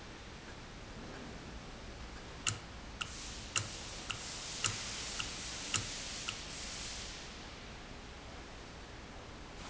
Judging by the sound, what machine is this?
valve